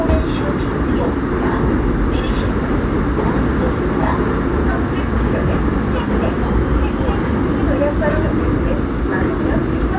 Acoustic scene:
subway train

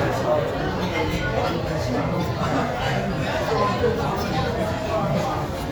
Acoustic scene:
restaurant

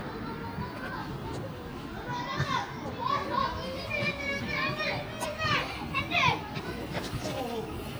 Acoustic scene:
residential area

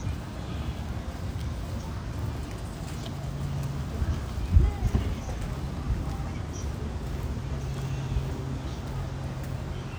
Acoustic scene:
residential area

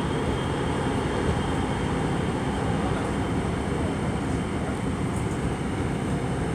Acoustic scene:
subway train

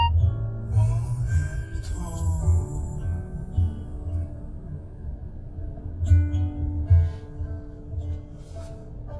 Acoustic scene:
car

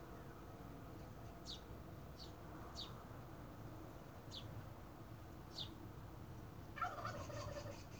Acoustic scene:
park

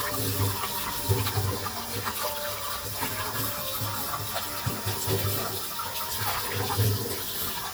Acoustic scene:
kitchen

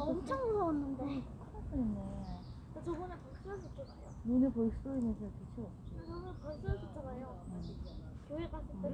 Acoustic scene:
park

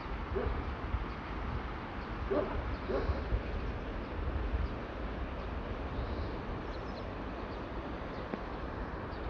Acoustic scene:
park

